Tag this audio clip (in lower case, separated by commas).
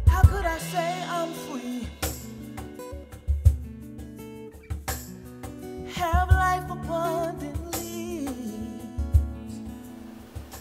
music